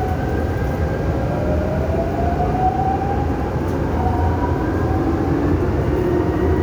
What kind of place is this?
subway train